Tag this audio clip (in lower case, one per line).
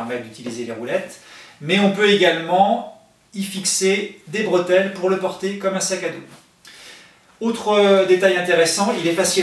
speech